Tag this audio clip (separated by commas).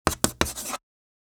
home sounds, Writing